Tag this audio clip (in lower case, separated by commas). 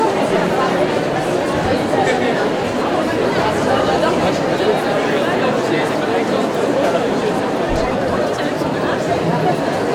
crowd, human group actions